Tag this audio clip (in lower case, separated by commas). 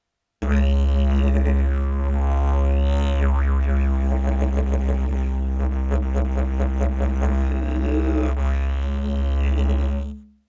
music, musical instrument